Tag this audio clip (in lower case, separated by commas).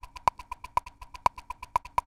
rattle